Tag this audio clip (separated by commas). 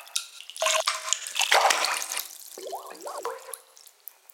Liquid, Splash